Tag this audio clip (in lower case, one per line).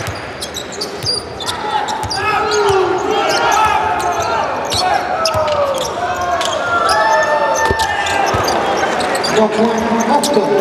basketball bounce